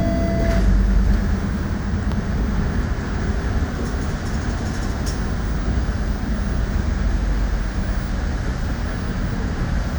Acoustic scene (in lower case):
bus